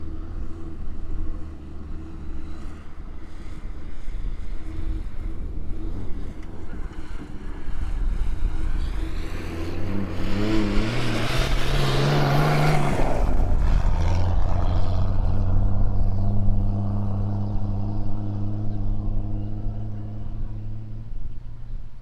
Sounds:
vehicle, car passing by, motor vehicle (road), car, accelerating, engine

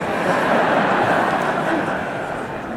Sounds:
human group actions, crowd

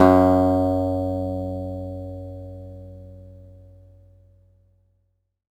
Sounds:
guitar, plucked string instrument, musical instrument, acoustic guitar, music

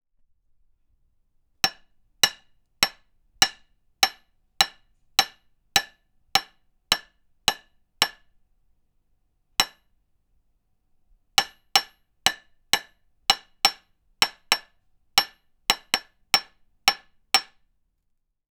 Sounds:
hammer, tools

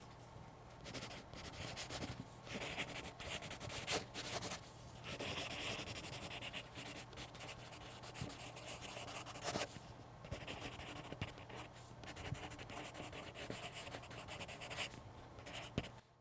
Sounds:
writing, domestic sounds

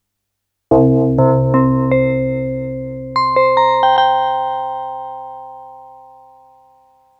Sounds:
musical instrument, music, keyboard (musical)

